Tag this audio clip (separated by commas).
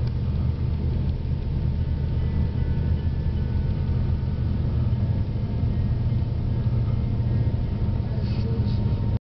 Vehicle, Music, Car